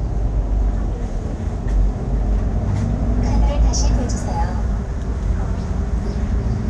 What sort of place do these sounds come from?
bus